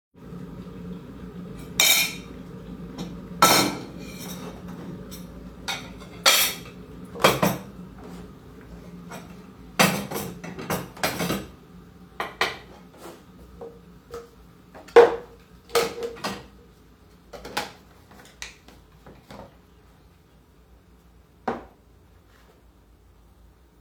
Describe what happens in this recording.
The kettle is boiling in the background, while I gather cleaned dishes and cutlery